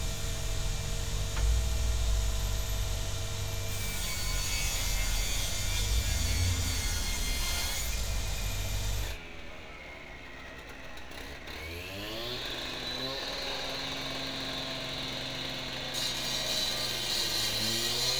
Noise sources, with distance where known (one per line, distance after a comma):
unidentified powered saw, near